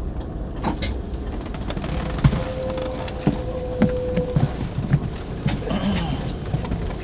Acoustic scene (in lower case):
bus